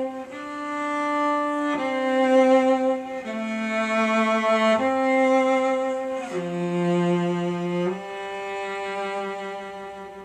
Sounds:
Musical instrument, Music, Cello

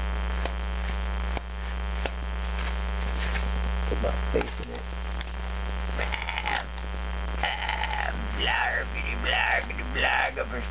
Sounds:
inside a small room, Speech

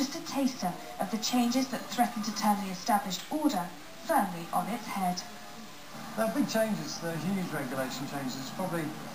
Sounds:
Speech

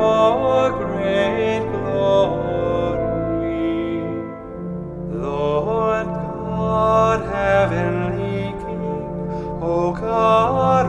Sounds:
Music

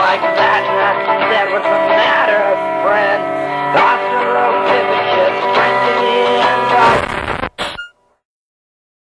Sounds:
Music

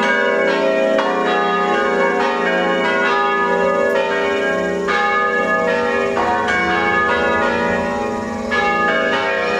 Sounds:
Change ringing (campanology)

